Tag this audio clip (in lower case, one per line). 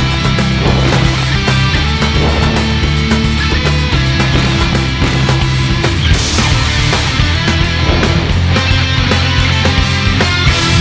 music